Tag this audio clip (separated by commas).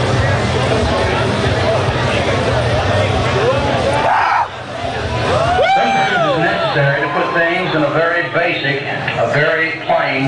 Speech